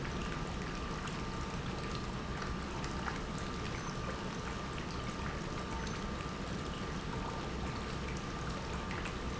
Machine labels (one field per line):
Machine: pump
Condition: normal